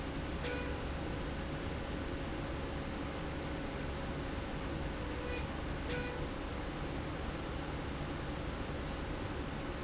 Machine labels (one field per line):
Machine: slide rail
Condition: normal